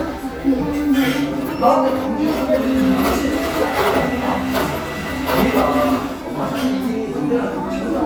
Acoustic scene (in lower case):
cafe